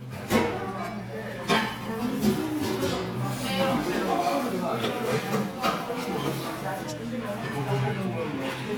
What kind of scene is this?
crowded indoor space